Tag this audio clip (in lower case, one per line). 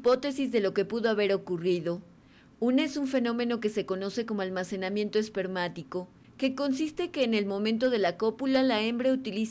speech